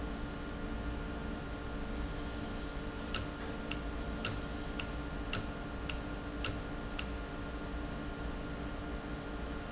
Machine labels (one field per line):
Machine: valve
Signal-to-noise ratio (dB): -6 dB